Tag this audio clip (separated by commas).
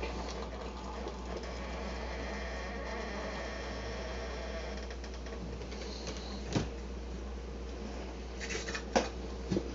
inside a small room